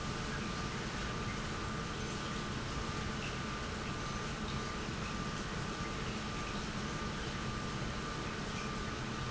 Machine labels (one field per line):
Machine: pump